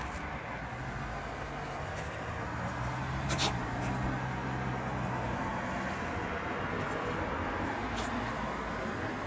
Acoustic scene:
street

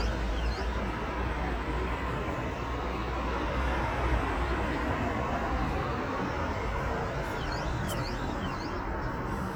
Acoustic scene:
street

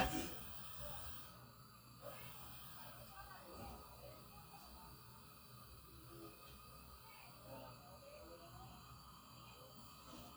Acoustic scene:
kitchen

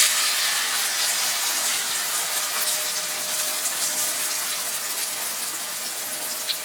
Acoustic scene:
kitchen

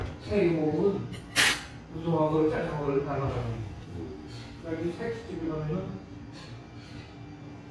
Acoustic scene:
restaurant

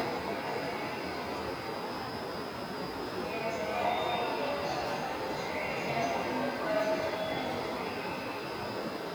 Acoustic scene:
subway station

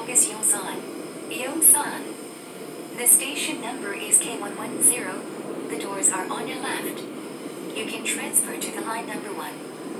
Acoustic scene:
subway train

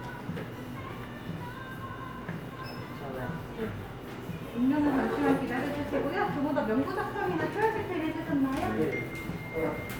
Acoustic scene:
cafe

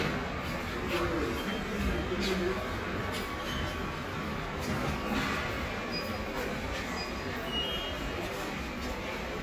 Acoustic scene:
subway station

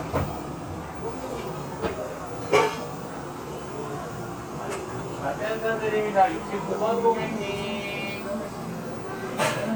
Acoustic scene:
cafe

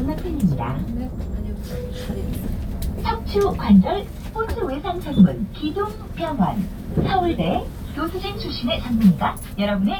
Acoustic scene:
bus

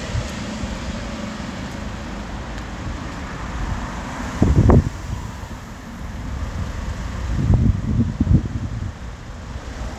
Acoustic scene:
street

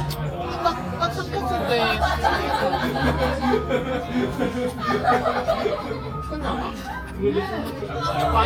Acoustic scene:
crowded indoor space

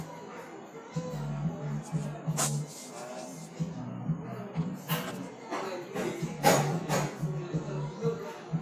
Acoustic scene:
cafe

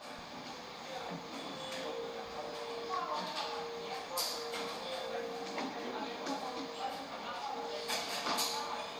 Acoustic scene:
cafe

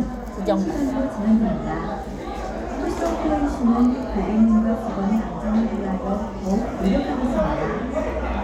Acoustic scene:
crowded indoor space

